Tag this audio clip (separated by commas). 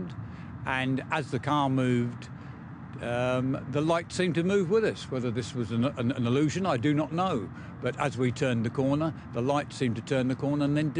Speech, Wind noise (microphone)